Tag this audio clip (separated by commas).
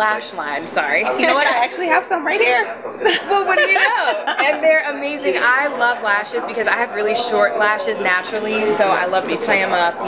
Speech